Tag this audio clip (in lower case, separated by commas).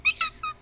squeak